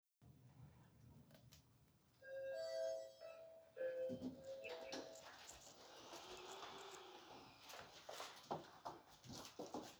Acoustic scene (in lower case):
elevator